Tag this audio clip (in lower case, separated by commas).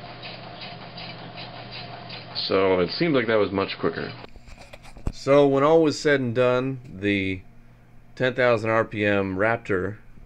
inside a small room, speech